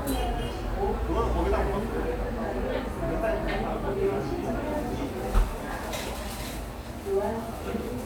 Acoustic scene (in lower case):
cafe